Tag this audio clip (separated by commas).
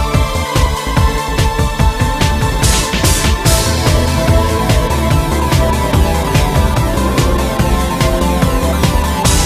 Music, Scary music